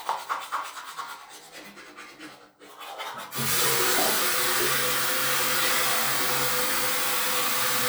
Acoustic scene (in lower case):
restroom